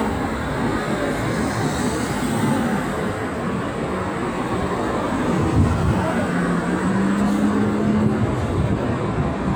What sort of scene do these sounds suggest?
street